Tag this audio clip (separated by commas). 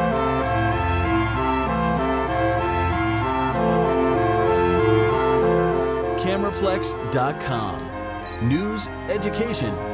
Speech, Music